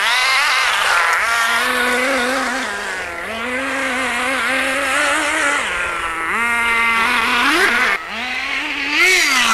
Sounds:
vehicle, car passing by

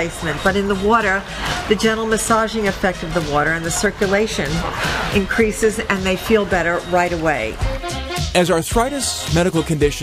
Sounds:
speech, music

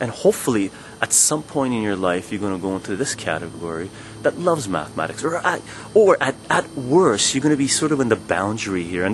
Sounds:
speech

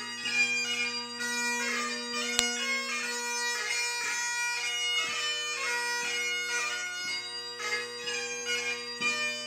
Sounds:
bagpipes, music

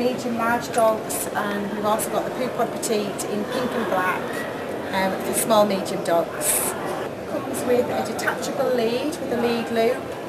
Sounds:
speech

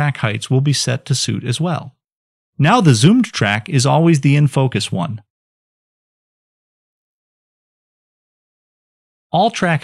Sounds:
speech

